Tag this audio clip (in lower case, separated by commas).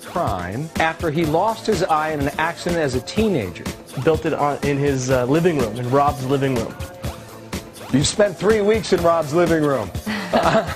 music, speech